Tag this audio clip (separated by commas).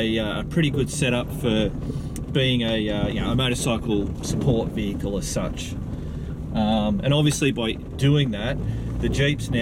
Speech